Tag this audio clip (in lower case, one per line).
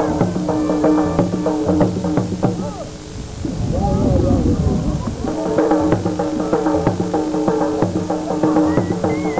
speech
livestock
animal
music
horse